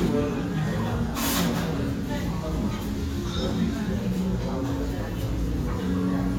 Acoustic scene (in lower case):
restaurant